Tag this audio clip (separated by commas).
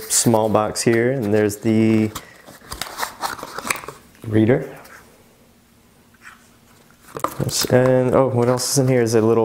Speech